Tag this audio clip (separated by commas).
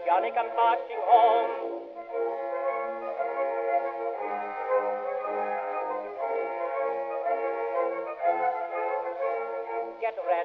Music